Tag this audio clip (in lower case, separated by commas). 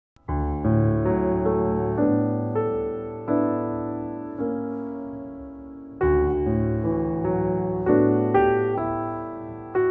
music